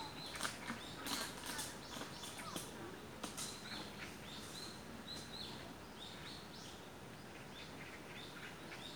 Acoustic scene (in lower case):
park